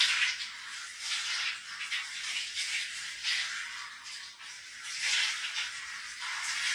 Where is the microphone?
in a restroom